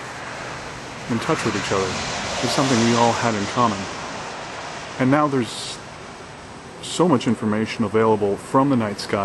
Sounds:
outside, rural or natural, Speech

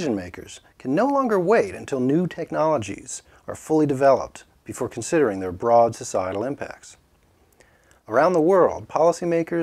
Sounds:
Speech

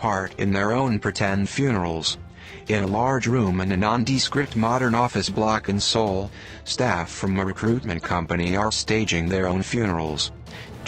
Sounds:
Speech, Music

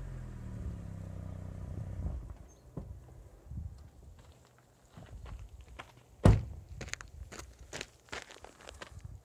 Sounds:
Crackle

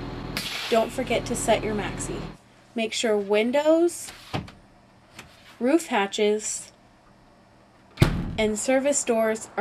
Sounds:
Vehicle, Bus, Speech

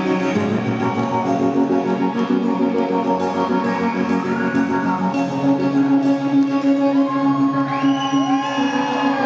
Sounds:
Tender music, Music, Musical instrument

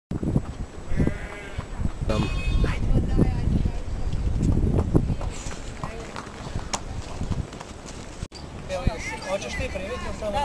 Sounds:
Speech, Horse

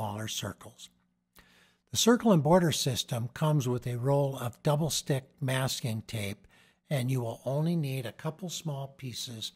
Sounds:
Speech

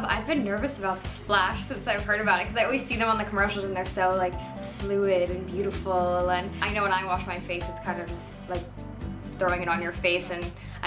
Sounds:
Music, Speech

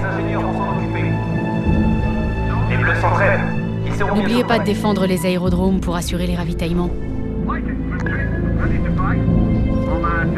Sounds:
Music, Speech

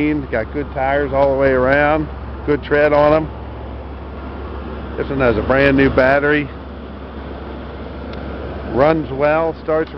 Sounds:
Speech, Vehicle

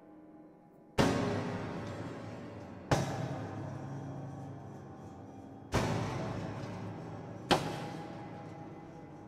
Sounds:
Hammer

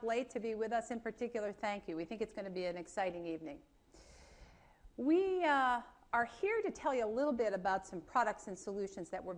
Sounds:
Speech

